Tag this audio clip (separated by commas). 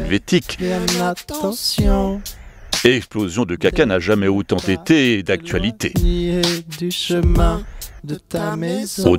Music, Speech